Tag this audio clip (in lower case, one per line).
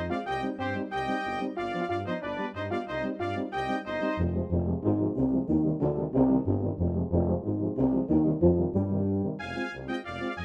music
percussion